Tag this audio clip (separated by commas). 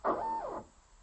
Mechanisms, Engine, Printer